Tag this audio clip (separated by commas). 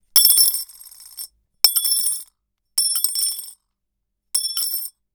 Coin (dropping), dishes, pots and pans, Domestic sounds